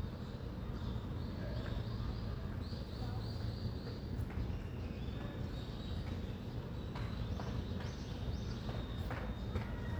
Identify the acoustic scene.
residential area